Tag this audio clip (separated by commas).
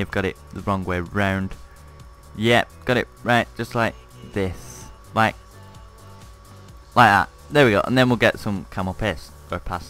Speech, Music